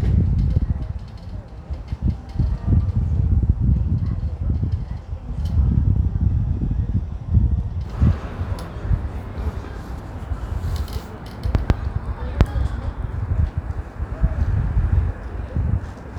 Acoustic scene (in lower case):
residential area